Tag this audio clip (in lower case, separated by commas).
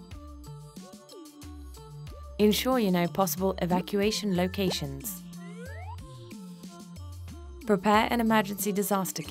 speech, music